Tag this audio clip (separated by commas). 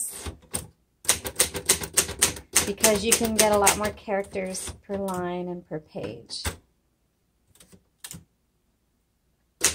typing on typewriter